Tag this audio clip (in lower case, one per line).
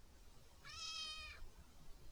cat
animal
pets
meow